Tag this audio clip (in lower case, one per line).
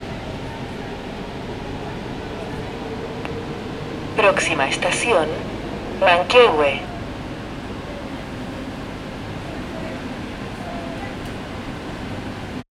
underground
vehicle
rail transport